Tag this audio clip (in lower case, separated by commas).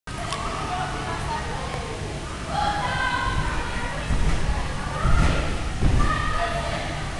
speech